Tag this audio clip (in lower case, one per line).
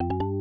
alarm
telephone